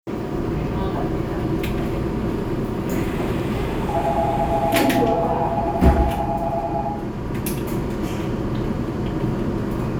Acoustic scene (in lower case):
subway train